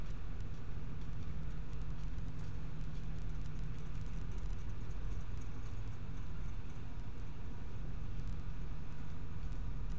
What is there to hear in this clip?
background noise